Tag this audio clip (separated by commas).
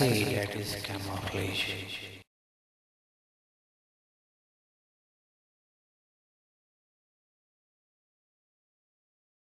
Speech